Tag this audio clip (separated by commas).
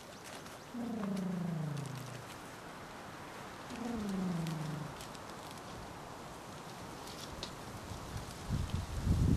outside, rural or natural